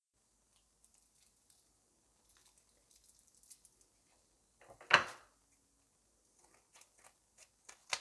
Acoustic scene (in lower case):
kitchen